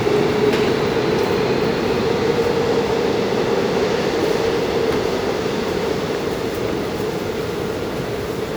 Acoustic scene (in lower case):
subway station